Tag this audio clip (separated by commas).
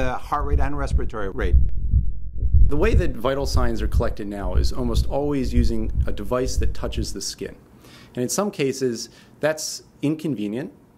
Speech